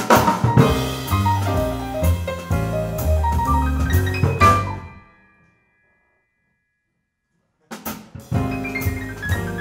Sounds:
Drum, Music, Musical instrument

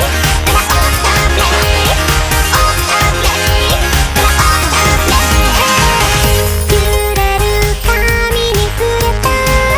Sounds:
Music

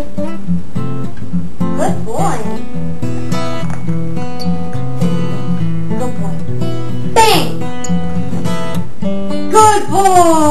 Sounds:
Music, Animal, Speech, pets

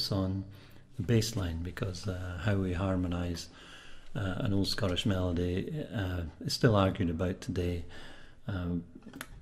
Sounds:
Speech

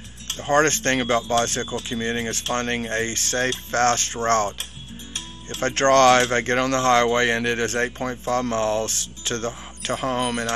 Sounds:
Speech, Music

